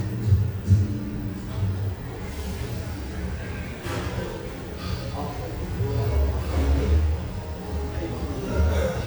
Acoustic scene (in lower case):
cafe